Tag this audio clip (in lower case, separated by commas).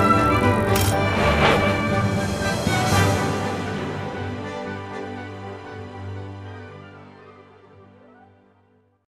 music